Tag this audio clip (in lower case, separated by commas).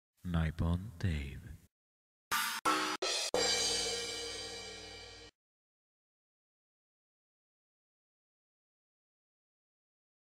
speech, music, silence